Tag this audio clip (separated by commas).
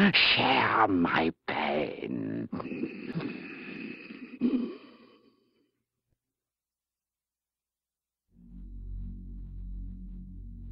Speech